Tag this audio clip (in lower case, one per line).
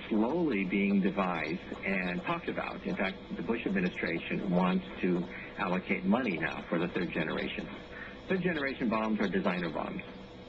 speech